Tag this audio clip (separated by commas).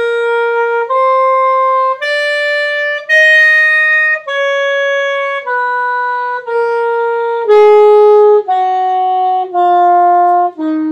Wind instrument